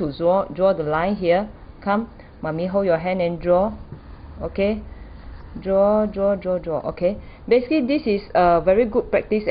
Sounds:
speech

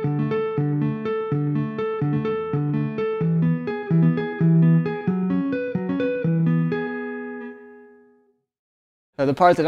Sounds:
tapping guitar

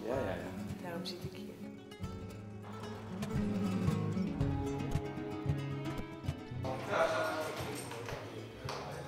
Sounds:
speech, music

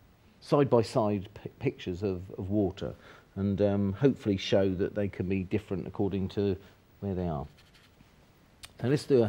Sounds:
speech

